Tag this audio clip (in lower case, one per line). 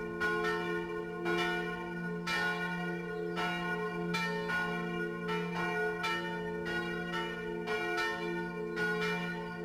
change ringing (campanology)